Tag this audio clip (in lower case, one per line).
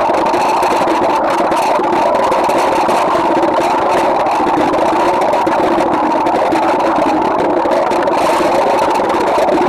underwater bubbling